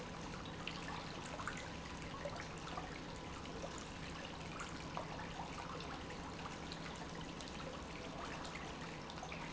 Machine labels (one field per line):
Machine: pump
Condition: normal